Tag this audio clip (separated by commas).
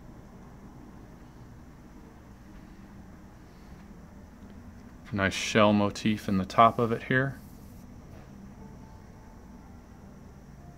Speech